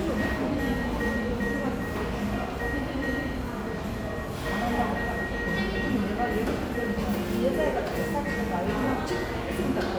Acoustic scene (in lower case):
cafe